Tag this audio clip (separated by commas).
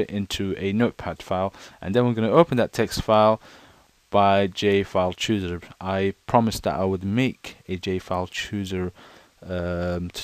Speech